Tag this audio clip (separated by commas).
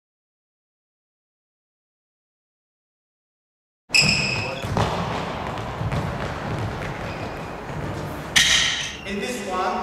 playing badminton